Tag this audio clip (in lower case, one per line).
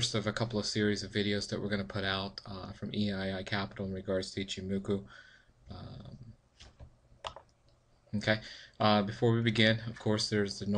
speech